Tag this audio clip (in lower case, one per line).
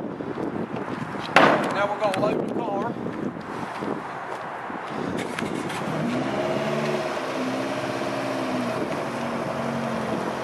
speech
car
vehicle